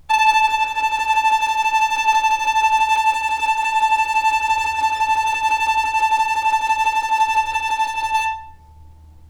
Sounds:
bowed string instrument, musical instrument, music

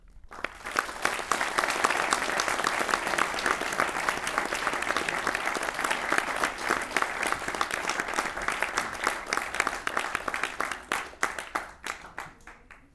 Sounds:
human group actions, applause

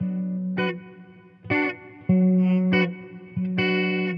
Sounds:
plucked string instrument, musical instrument, guitar, electric guitar, music

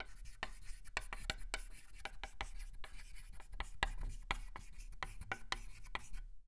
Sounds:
writing, domestic sounds

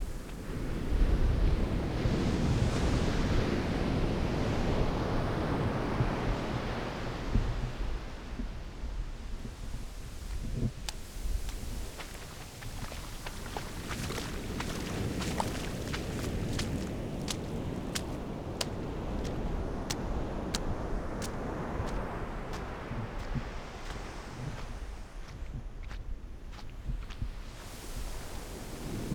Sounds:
waves, water, ocean

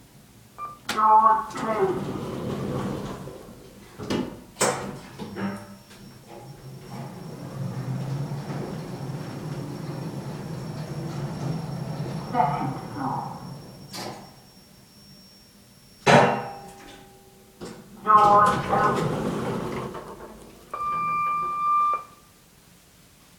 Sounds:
door, domestic sounds, sliding door

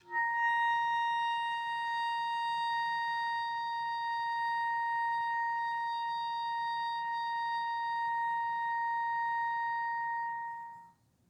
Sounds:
woodwind instrument, musical instrument, music

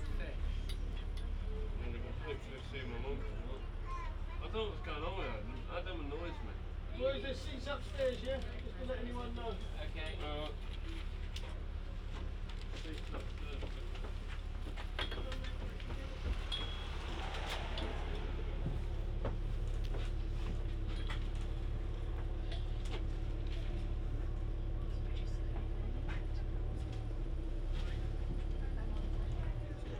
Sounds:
bus, vehicle, motor vehicle (road)

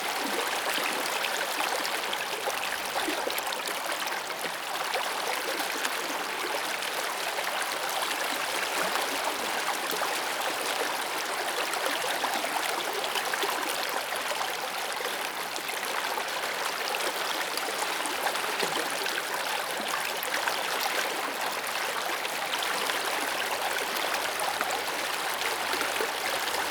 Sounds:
stream, water

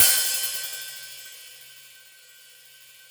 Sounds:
hi-hat, musical instrument, cymbal, percussion, music

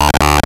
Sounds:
speech, speech synthesizer, human voice

